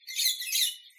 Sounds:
animal
wild animals
bird

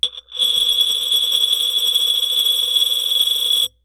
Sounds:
domestic sounds
glass
coin (dropping)

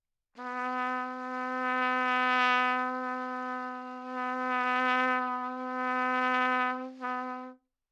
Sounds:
musical instrument
music
brass instrument
trumpet

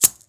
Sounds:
musical instrument
music
rattle (instrument)
percussion

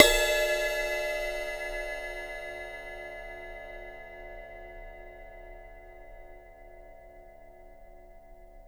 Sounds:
percussion
music
cymbal
musical instrument
crash cymbal

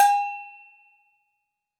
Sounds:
bell

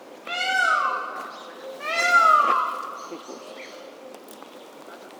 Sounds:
wild animals
animal
bird

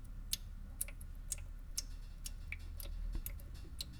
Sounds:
sink (filling or washing)
domestic sounds

